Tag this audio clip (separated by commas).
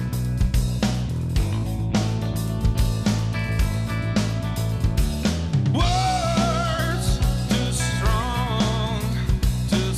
Music